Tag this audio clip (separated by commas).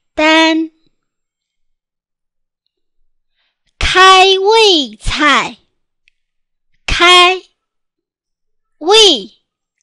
Speech